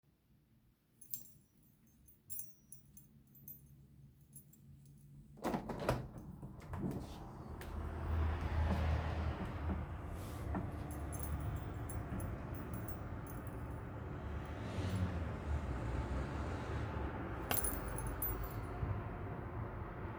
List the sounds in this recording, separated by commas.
keys, window